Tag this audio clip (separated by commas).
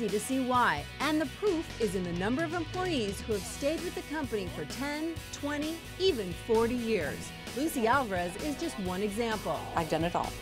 Music, Speech